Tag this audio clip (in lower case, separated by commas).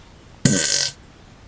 fart